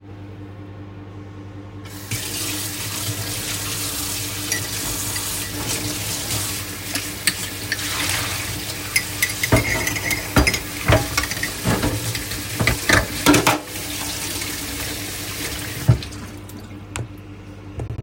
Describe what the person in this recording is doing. I opened the tap, water running, took the cup and fork, washed them and closed the tap, during this process the microwave was working (overlap)